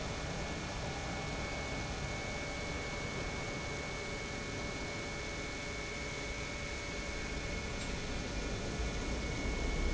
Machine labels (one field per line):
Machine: pump